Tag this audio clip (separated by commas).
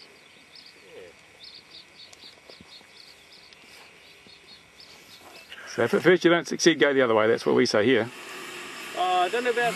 Speech, Aircraft, outside, rural or natural